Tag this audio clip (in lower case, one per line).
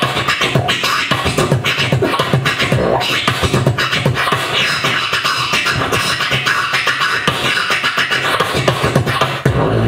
beat boxing